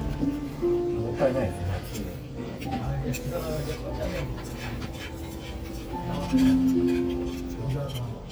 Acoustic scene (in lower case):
restaurant